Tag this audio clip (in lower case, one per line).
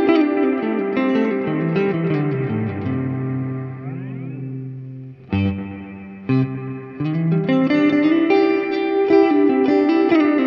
effects unit
guitar
musical instrument
plucked string instrument
distortion
electric guitar
music